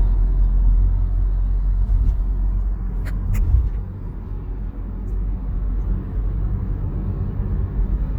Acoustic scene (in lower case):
car